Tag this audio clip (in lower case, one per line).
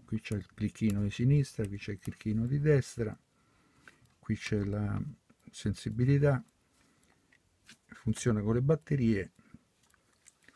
speech